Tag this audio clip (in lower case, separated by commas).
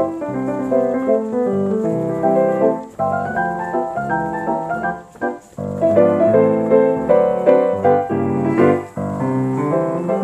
music